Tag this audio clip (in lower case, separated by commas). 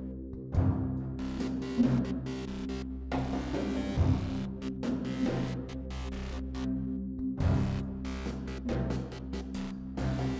music